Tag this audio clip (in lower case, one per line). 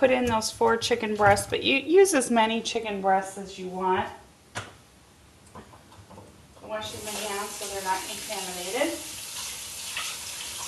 speech